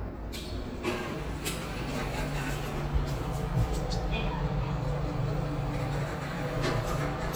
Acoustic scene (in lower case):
elevator